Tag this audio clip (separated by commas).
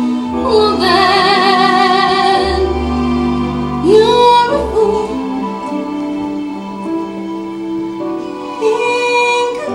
Female singing, Music